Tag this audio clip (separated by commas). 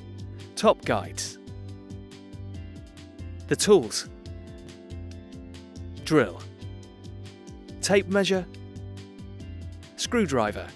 Speech, Music